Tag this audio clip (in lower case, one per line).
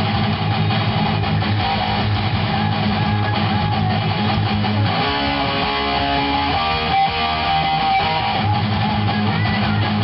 bass guitar
electric guitar
music
plucked string instrument
guitar
musical instrument